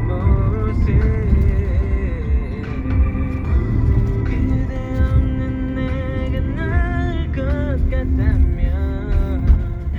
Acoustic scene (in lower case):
car